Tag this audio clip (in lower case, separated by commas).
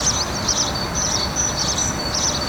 wild animals, bird, animal